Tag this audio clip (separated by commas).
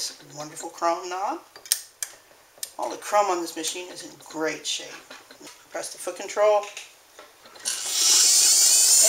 Speech, dentist's drill